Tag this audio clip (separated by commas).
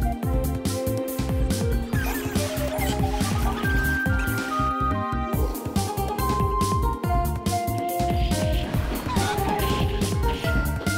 Music